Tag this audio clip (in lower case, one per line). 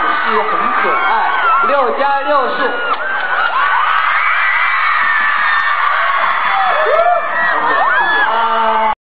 speech